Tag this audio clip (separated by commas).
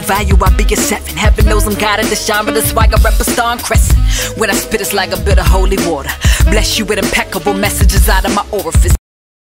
Music, Electronica